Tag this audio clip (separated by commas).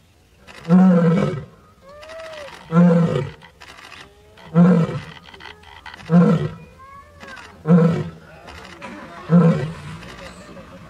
lions roaring